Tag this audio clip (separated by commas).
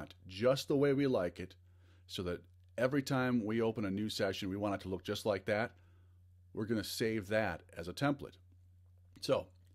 Speech